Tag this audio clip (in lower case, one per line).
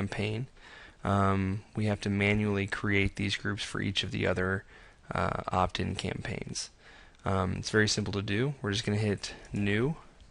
speech